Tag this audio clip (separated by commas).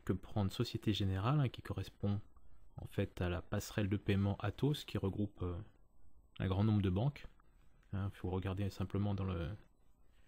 Speech